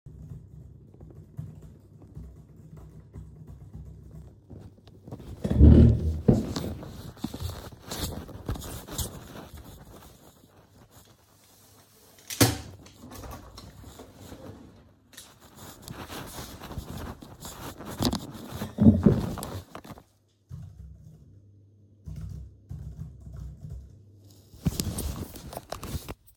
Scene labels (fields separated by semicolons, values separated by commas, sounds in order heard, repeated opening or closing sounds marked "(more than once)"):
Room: kitchen; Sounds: keyboard typing, footsteps, window